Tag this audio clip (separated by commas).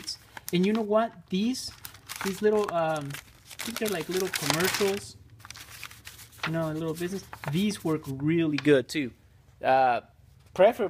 Speech